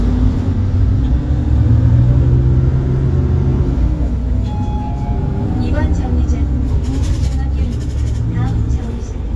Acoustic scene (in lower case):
bus